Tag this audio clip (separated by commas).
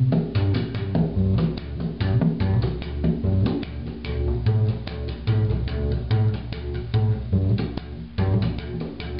playing double bass